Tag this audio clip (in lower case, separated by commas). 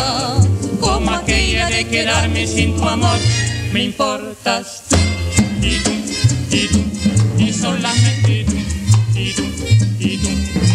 music of latin america, music